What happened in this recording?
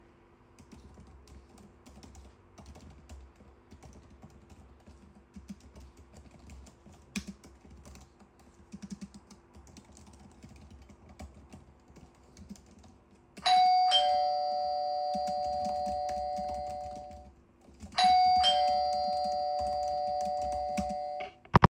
I was typing loudly and continuously on my keyboard. While I was typing, the doorbell rang.